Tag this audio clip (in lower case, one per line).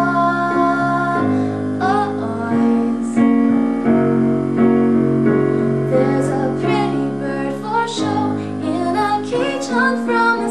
music